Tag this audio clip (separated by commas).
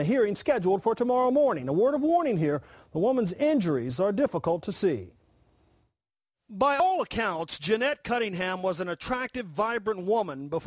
Speech